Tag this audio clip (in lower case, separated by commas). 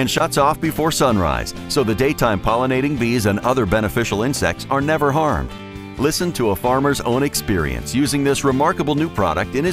music, speech